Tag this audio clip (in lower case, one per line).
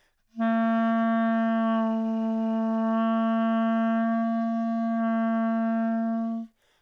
musical instrument
music
wind instrument